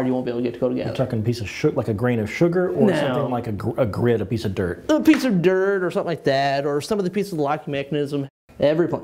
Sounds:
Speech

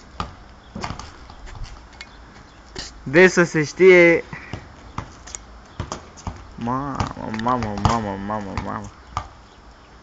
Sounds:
Speech

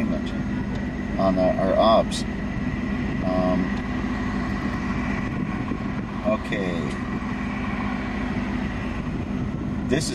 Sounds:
outside, rural or natural, Speech

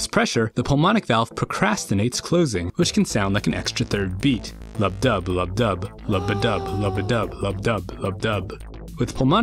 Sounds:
Music, Speech

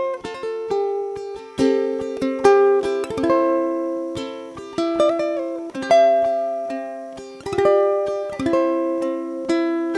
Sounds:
playing ukulele

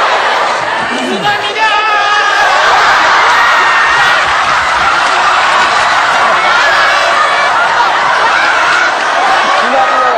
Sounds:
Speech

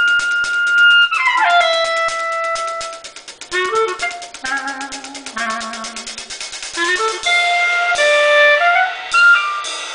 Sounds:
Music

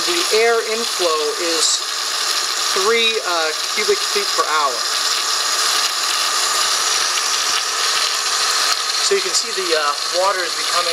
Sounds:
Speech, Pump (liquid), Water

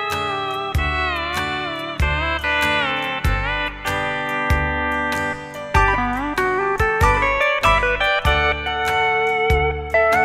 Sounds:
playing steel guitar

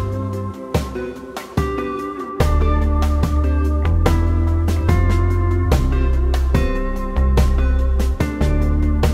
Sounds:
Plucked string instrument, Strum, Music, Guitar

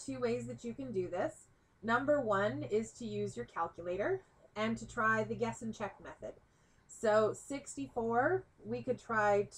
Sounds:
Speech

